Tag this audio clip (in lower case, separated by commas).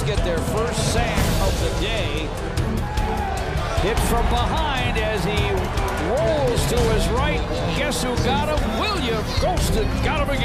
speech, music